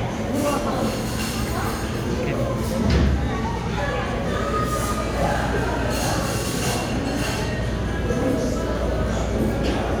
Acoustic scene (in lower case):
crowded indoor space